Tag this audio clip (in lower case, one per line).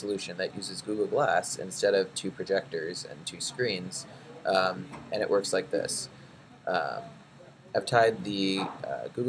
speech